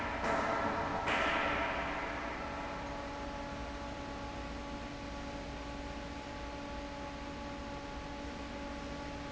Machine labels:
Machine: fan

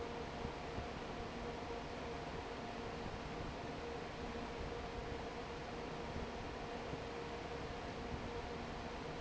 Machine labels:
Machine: fan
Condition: normal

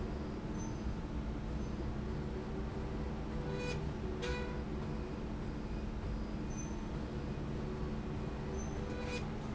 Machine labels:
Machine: slide rail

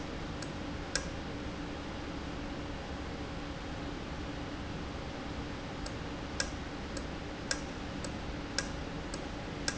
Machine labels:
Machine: valve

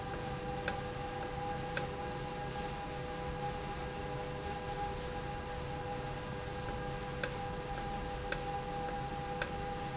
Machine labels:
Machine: valve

